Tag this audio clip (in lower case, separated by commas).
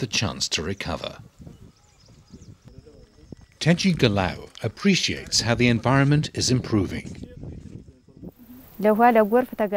speech